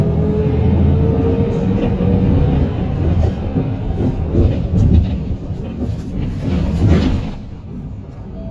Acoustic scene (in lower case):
bus